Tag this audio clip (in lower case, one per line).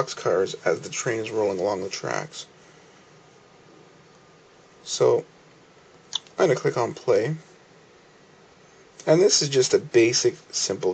speech